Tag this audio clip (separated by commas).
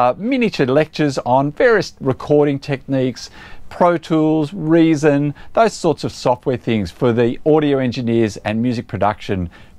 Speech